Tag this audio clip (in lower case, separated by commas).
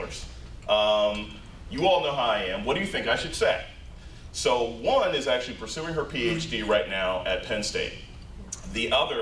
speech, man speaking